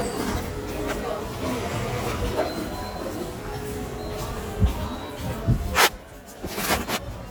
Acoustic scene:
subway station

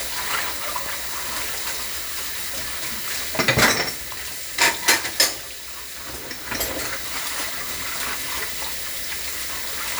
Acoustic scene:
kitchen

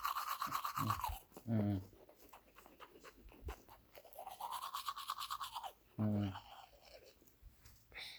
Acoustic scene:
restroom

